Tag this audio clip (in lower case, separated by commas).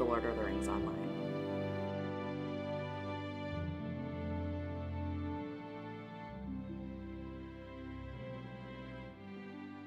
music, speech